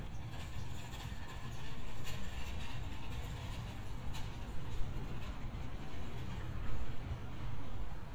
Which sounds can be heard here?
background noise